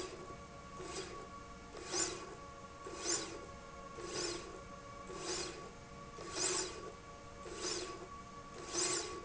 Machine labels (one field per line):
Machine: slide rail